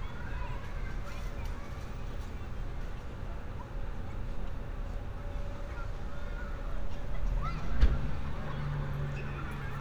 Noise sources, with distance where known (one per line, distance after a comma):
medium-sounding engine, far
unidentified human voice, far